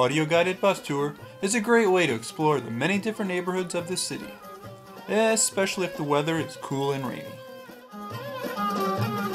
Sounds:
speech, music

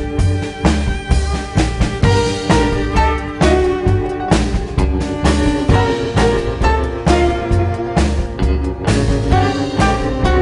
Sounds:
cello, double bass, violin, bowed string instrument

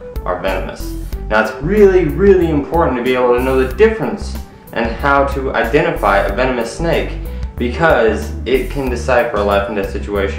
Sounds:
inside a small room, music, speech, male speech

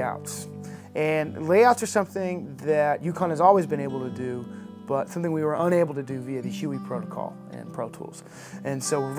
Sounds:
speech, music

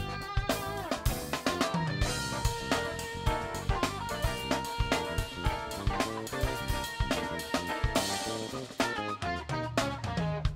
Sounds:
music, drum kit, musical instrument, drum

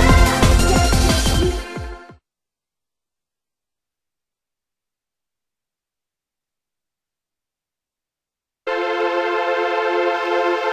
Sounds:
techno, music, electronic music

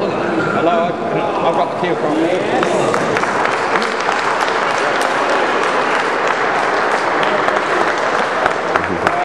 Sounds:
speech

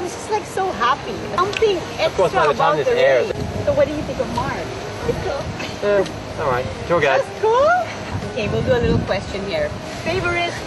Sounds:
music, outside, urban or man-made, speech

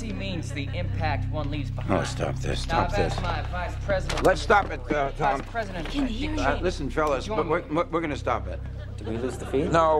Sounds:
male speech, speech, conversation, female speech

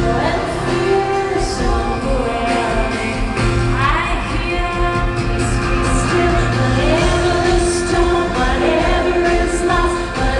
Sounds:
music, female singing

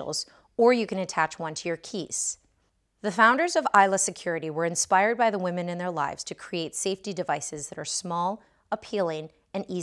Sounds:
speech

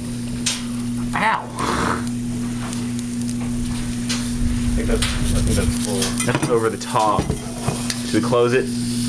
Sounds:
speech

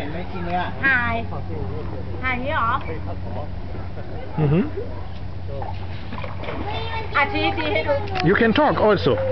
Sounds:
speech, outside, rural or natural

